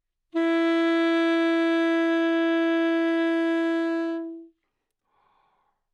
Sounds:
wind instrument
music
musical instrument

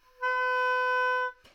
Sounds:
musical instrument
wind instrument
music

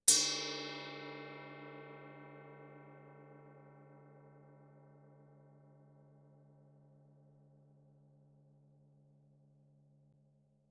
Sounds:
musical instrument
gong
percussion
music

